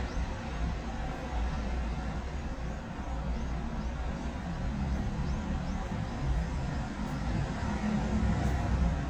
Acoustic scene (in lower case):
residential area